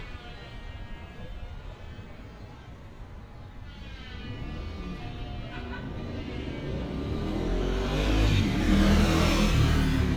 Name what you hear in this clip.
medium-sounding engine, unidentified powered saw, person or small group talking